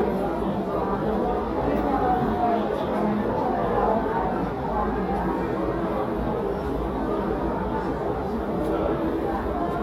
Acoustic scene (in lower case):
crowded indoor space